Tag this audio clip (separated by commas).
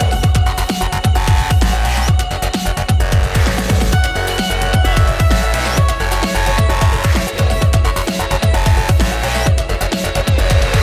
Music